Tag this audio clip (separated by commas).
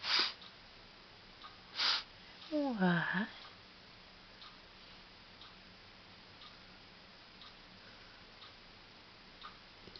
Speech